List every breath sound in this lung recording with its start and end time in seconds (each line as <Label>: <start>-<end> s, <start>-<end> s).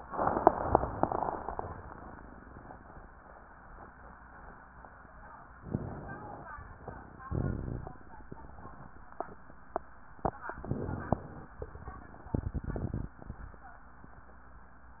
Inhalation: 5.62-6.51 s, 10.70-11.59 s